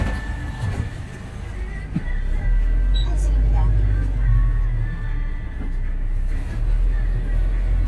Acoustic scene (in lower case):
bus